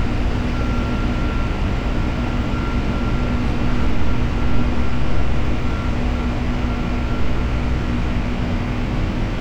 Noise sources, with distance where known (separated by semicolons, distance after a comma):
engine of unclear size; unidentified alert signal